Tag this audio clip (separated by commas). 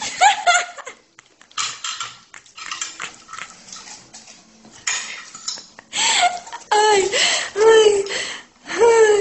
eating with cutlery